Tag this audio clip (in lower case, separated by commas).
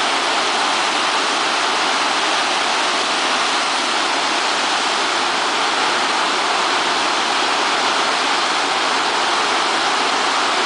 waterfall